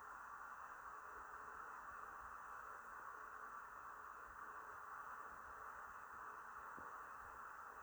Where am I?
in an elevator